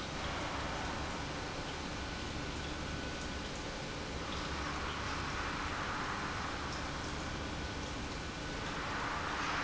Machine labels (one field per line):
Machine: pump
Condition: normal